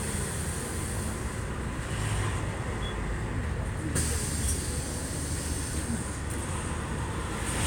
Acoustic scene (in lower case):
bus